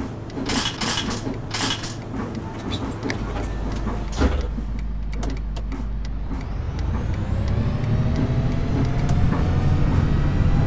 Clicking noise firing off quickly with rocking noise in background